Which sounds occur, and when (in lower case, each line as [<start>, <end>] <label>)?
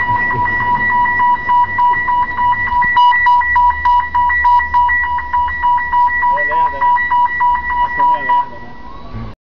[0.00, 8.59] car alarm
[0.00, 9.32] mechanisms
[6.22, 6.95] male speech
[7.75, 8.64] male speech